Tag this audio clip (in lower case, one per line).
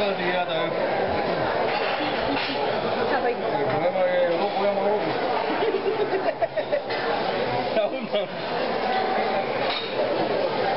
speech
inside a public space